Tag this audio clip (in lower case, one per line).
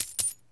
coin (dropping)
domestic sounds